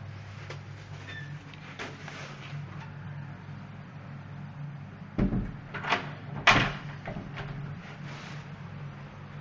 Clicking and squeaking followed by a door shutting and latching